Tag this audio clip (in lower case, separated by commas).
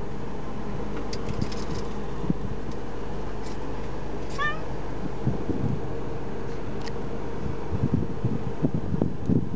cat, animal, pets